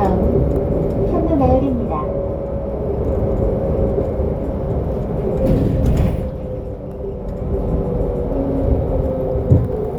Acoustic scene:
bus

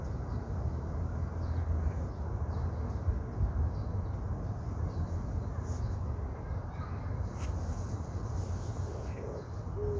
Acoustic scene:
park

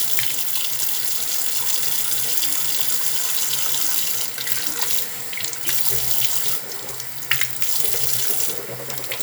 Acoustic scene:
restroom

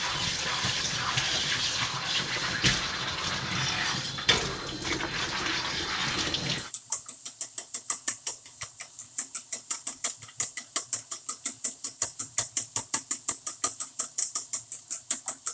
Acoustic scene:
kitchen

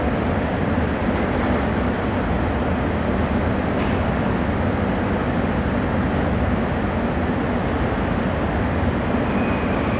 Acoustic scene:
subway station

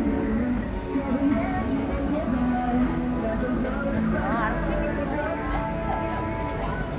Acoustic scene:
street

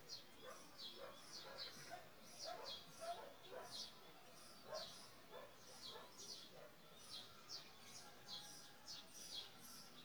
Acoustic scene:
park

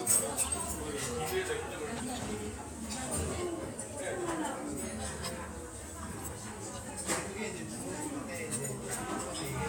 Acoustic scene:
restaurant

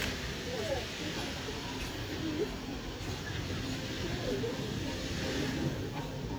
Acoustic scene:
park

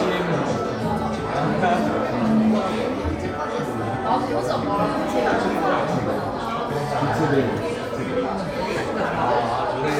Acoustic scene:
crowded indoor space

